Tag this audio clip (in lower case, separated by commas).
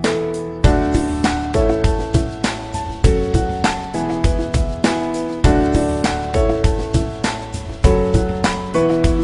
music